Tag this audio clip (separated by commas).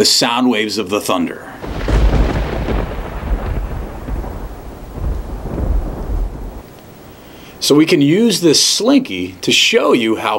Speech